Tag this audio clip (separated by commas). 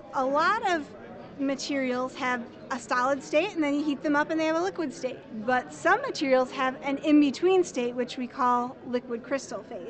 Speech